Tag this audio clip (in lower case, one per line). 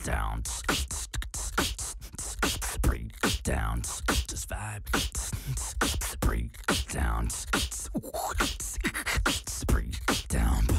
beat boxing